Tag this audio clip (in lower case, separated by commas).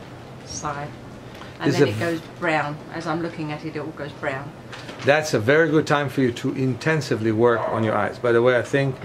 speech